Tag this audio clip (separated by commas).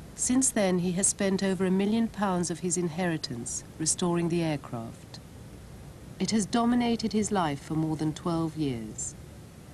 Speech